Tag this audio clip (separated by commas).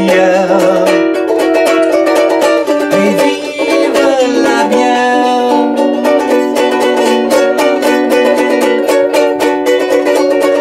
inside a small room, Ukulele, Music